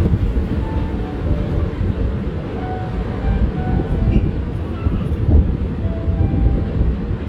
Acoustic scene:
park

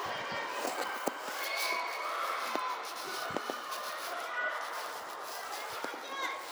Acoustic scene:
residential area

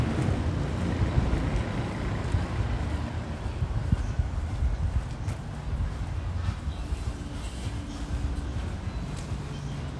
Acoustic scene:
residential area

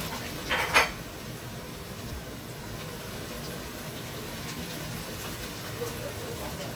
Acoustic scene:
kitchen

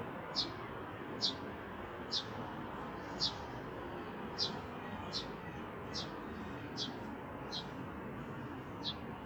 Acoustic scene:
residential area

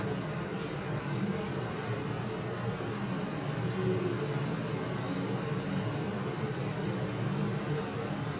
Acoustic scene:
elevator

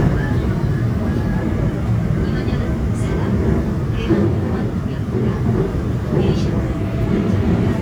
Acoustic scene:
subway train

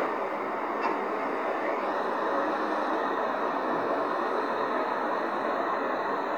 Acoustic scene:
street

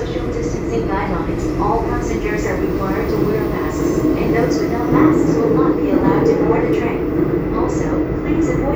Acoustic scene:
subway train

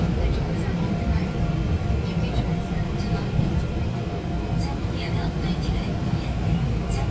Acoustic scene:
subway train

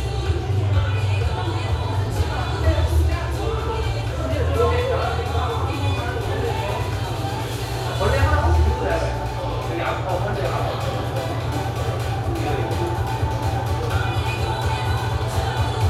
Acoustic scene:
cafe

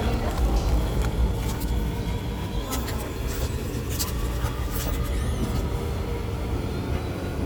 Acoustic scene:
subway station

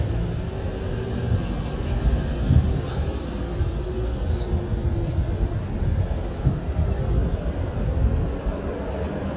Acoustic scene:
residential area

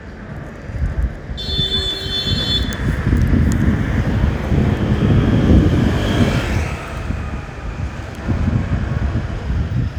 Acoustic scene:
street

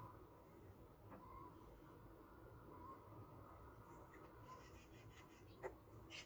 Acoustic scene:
park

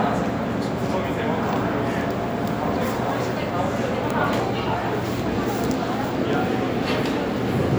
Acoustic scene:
subway station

